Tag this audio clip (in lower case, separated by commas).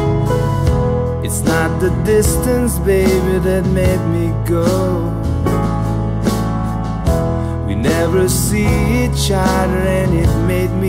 music